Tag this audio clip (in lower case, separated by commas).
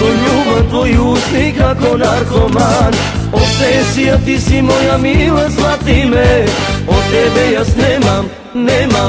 music